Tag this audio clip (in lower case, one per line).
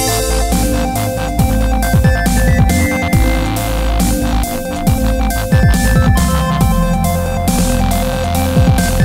music
electronic music